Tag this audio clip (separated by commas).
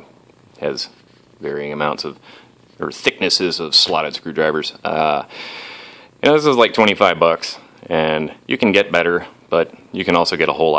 Speech, Purr